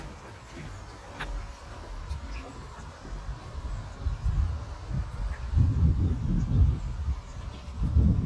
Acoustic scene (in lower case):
park